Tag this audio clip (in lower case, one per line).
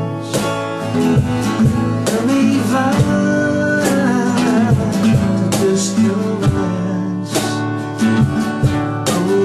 music